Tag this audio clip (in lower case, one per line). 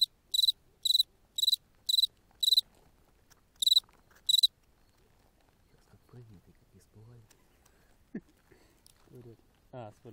cricket chirping